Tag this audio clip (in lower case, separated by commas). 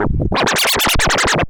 musical instrument, scratching (performance technique), music